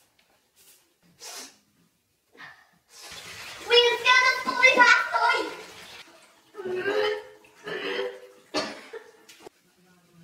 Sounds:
inside a small room, Speech

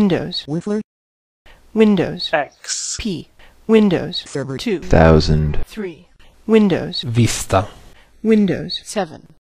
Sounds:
Speech

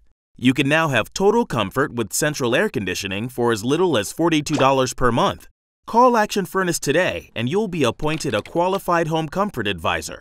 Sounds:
Speech

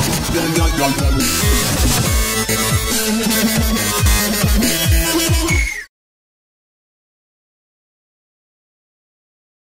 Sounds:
Music, Dubstep, Electronic music

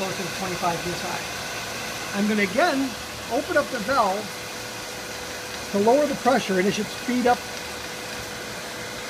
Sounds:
Speech

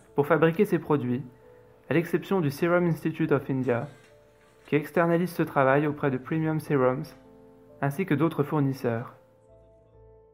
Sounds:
Music, Speech

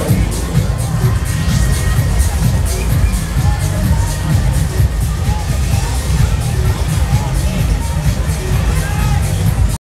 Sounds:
Speech, Music

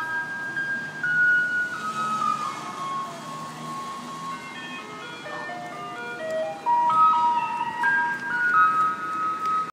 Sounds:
Vehicle, Music, Reversing beeps, Speech

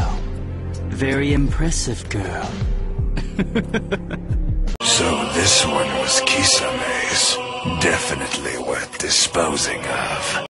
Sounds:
Speech, Music

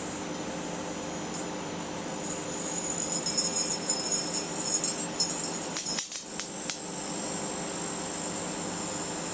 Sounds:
inside a small room, Microwave oven

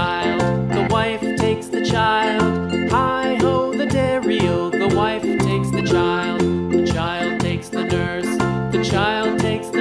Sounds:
Music

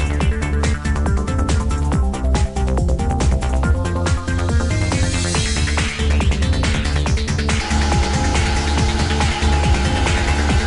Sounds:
Music

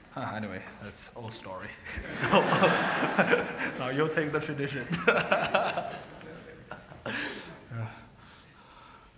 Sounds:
Speech

